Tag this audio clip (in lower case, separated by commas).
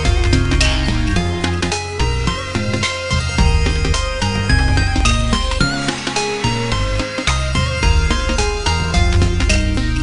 music